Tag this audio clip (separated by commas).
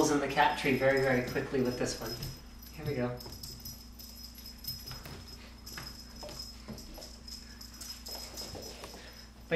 Speech